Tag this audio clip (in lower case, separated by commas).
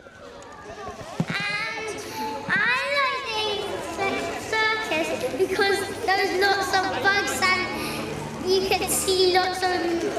speech, music